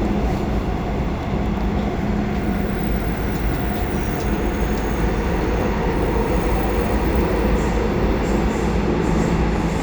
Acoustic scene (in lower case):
subway train